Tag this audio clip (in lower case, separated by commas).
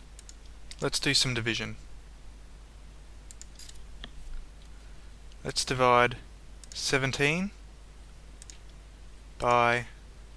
speech